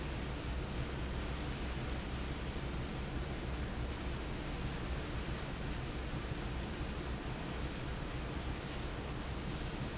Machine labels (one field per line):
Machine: fan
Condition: abnormal